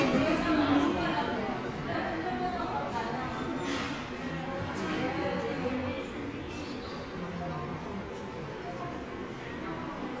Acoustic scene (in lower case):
subway station